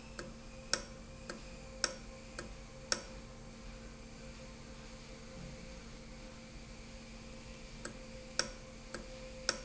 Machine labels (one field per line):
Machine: valve